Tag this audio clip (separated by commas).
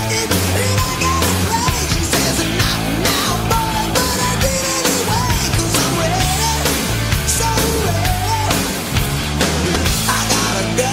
Rock and roll, Heavy metal, Music